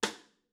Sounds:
music
musical instrument
percussion
snare drum
drum

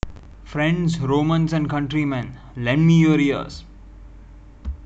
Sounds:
human voice
speech

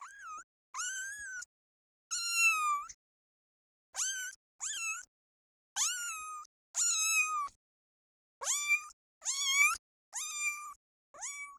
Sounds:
meow
cat
animal
pets

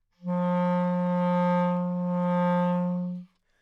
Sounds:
musical instrument
music
wind instrument

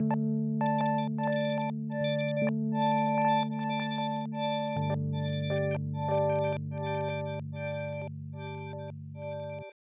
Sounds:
keyboard (musical)
musical instrument
piano
music

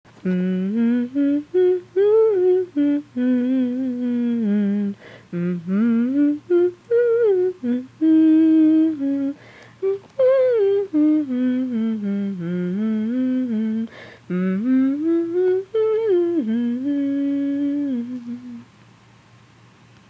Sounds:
human voice
singing

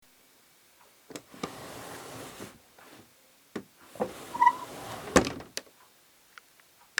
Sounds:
home sounds
drawer open or close

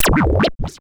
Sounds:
musical instrument
music
scratching (performance technique)

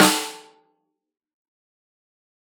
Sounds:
music
snare drum
drum
musical instrument
percussion

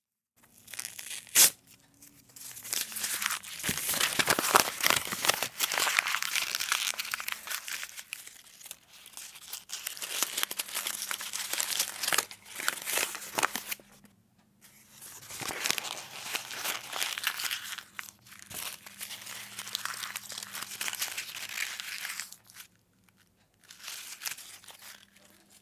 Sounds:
crinkling

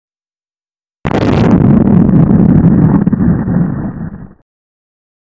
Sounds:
explosion
boom

